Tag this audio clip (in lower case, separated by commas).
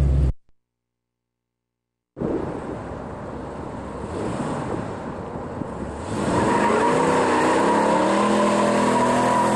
tire squeal, car, vehicle